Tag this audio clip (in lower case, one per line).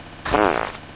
fart